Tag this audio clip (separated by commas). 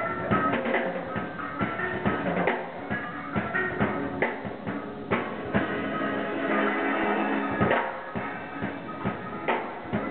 Percussion, Music, Drum, Musical instrument